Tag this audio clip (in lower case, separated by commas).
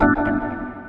musical instrument, music, organ, keyboard (musical)